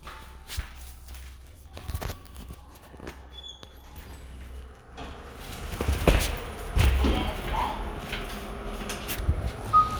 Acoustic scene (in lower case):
elevator